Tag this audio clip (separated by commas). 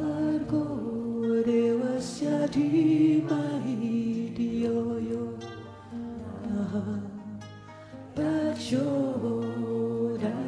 Music, Mantra